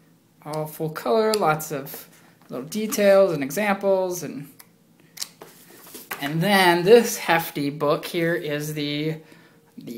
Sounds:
speech

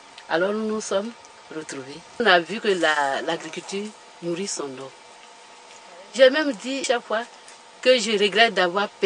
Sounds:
speech

